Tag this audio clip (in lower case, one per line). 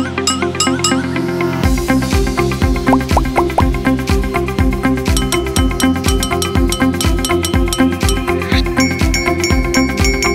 music